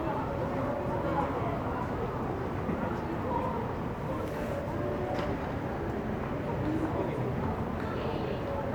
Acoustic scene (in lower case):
crowded indoor space